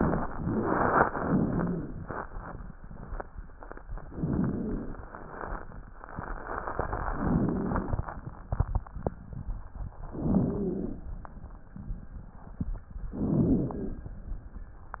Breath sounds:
Inhalation: 4.10-5.03 s, 7.13-8.06 s, 10.17-11.10 s, 13.19-14.12 s
Wheeze: 4.10-5.03 s, 7.13-8.06 s, 10.17-11.10 s, 13.19-14.12 s

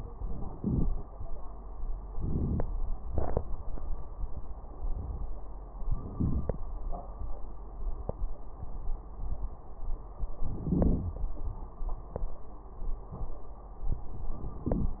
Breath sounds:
Inhalation: 0.14-0.56 s, 2.14-2.65 s, 5.93-6.65 s, 10.50-11.14 s, 14.61-15.00 s
Exhalation: 0.54-1.05 s, 3.05-3.46 s
Crackles: 2.10-2.60 s, 10.50-11.14 s

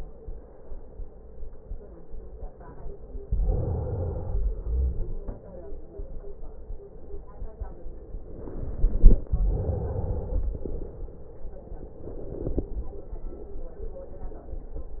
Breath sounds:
Inhalation: 3.29-4.49 s, 8.26-9.25 s
Exhalation: 4.49-5.70 s, 9.26-11.47 s

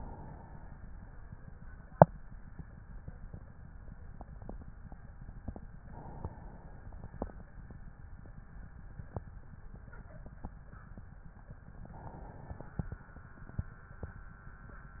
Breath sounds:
Inhalation: 0.00-0.76 s, 5.82-7.42 s, 11.92-13.05 s

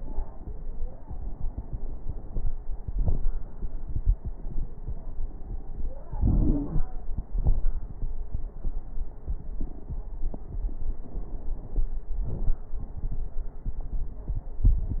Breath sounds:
Inhalation: 6.15-6.84 s
Exhalation: 7.30-7.67 s
Crackles: 6.15-6.84 s, 7.30-7.67 s

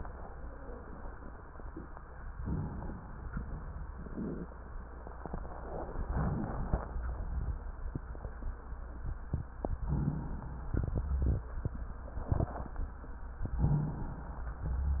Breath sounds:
Inhalation: 2.35-3.28 s, 6.12-6.96 s, 9.84-10.73 s, 13.64-14.50 s
Wheeze: 13.57-13.90 s

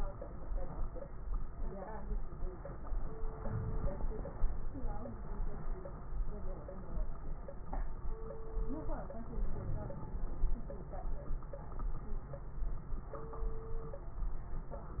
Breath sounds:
Inhalation: 3.34-4.26 s, 9.30-10.23 s
Crackles: 3.34-4.26 s, 9.30-10.23 s

